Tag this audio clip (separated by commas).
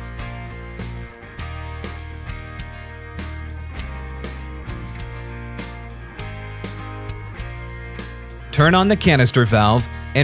Speech, Music